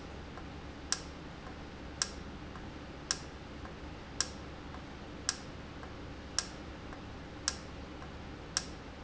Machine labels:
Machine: valve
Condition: normal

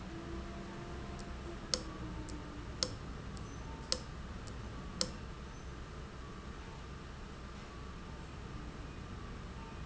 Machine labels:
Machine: valve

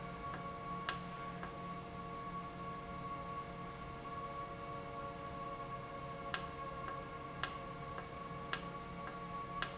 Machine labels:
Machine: valve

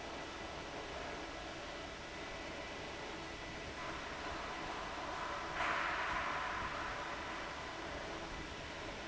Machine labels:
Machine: fan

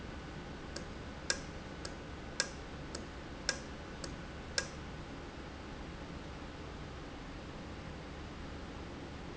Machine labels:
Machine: valve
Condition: normal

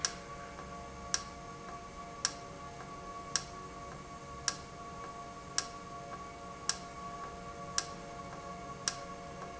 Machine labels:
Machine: valve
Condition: normal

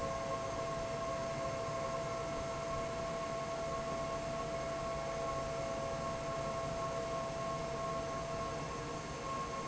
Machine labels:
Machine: fan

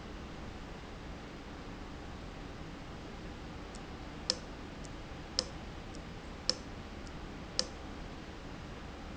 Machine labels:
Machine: valve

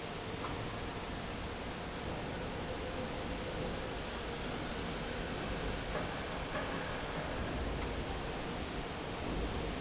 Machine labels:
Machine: fan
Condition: normal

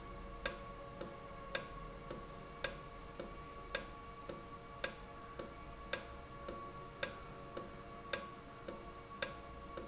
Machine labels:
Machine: valve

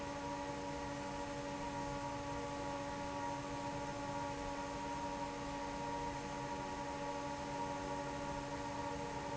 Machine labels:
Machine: fan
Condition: normal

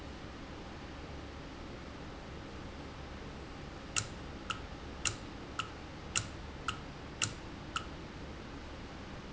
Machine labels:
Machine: valve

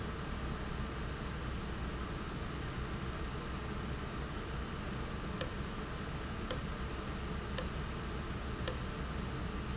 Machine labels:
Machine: valve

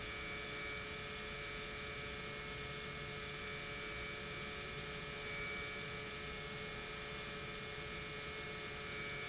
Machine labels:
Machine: pump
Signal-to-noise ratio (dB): 6 dB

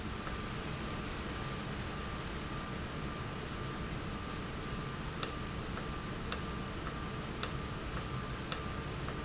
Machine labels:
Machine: valve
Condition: normal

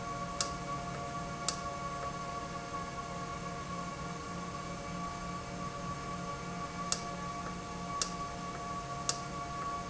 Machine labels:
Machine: valve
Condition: normal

